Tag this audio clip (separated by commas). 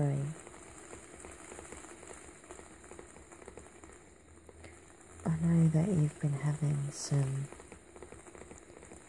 Speech